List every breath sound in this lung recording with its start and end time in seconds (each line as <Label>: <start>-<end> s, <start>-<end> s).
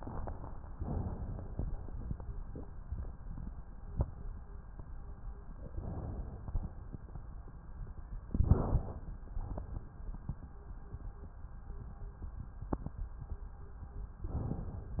Inhalation: 0.74-1.67 s, 5.71-6.64 s, 8.31-9.11 s, 14.27-15.00 s